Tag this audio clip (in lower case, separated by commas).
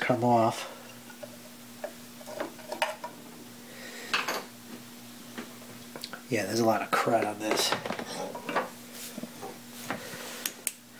inside a small room, speech